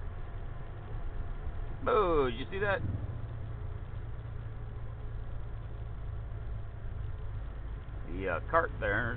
A large motor vehicle engine is idling, and an adult male speaks